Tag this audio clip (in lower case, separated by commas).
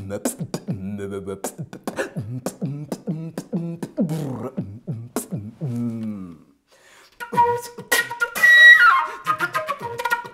flute, music